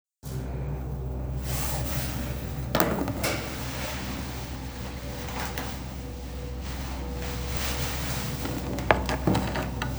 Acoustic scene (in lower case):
elevator